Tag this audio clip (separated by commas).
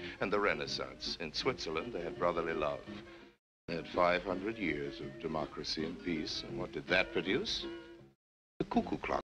Narration, Speech, man speaking, Music